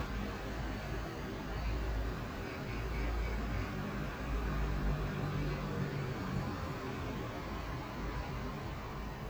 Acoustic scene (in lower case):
street